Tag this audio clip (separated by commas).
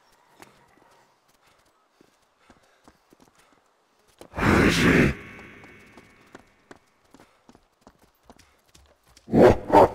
inside a small room, outside, urban or man-made, Speech